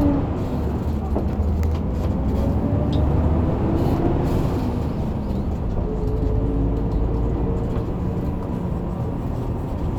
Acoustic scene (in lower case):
bus